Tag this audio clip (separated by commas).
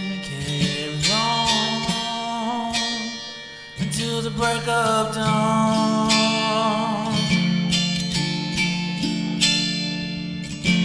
Musical instrument, Singing, Music, Tapping (guitar technique), Plucked string instrument, Guitar